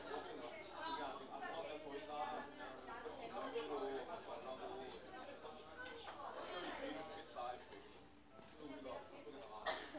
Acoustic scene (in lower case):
crowded indoor space